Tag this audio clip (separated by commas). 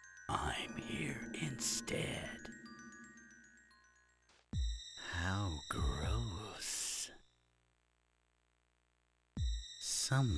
Speech, Music